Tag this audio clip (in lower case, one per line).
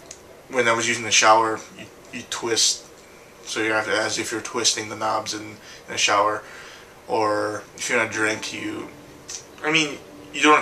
speech